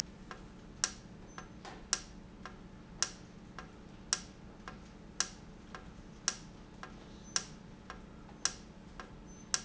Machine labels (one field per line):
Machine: valve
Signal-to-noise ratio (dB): 6 dB